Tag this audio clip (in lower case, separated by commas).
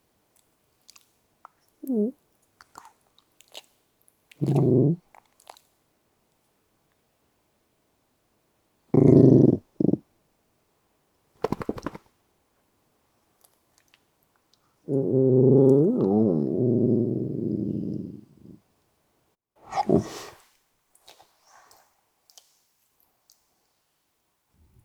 animal, dog, domestic animals